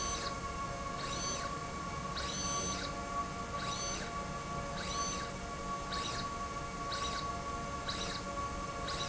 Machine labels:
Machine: slide rail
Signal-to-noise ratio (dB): -6 dB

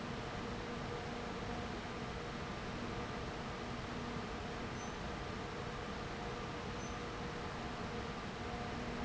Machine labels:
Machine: fan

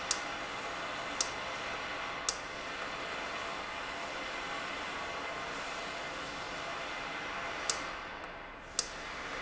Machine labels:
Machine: valve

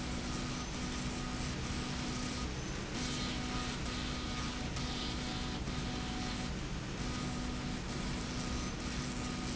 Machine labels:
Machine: slide rail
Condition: abnormal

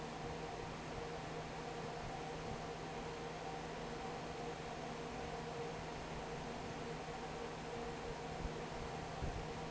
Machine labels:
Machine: fan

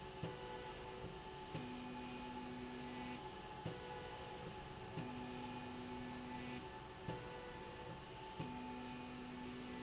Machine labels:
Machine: slide rail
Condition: normal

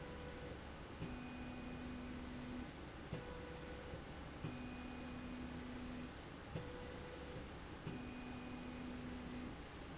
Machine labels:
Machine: slide rail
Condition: normal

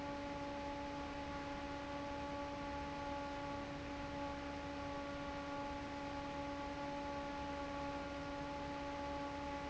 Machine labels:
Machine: fan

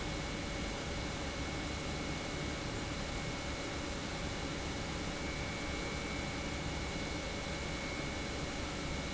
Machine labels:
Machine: pump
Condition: normal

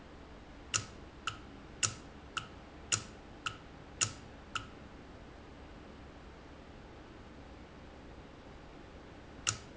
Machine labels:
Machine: valve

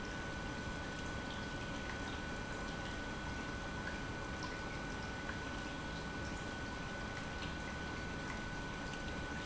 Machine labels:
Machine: pump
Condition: normal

